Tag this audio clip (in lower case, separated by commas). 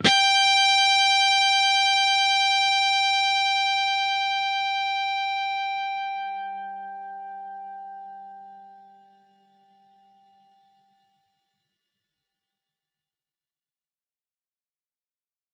music, guitar, plucked string instrument, musical instrument